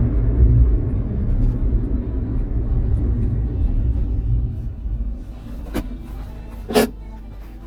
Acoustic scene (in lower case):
car